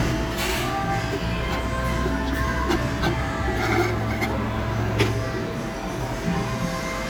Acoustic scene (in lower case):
cafe